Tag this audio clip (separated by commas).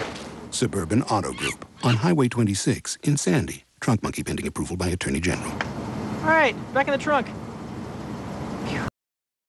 Speech